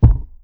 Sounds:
thump

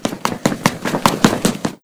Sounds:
run

